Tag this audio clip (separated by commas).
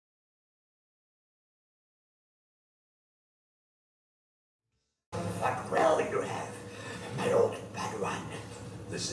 Speech